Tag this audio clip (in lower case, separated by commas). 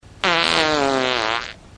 fart